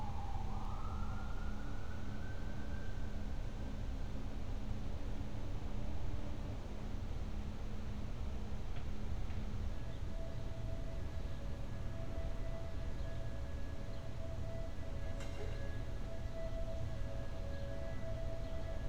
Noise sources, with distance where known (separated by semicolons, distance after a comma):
siren, far